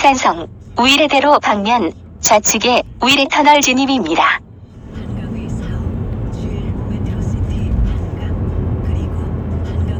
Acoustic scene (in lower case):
car